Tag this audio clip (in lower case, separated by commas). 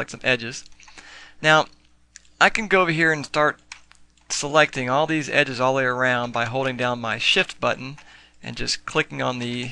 speech